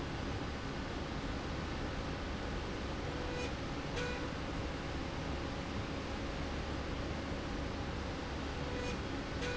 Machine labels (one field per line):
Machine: slide rail